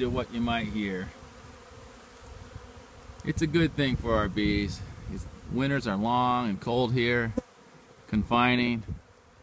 Man speaking and bees buzzing